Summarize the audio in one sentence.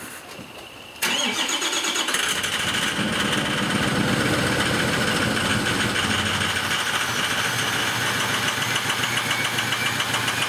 A vehicle engine starting up and chugging while frogs croak in the background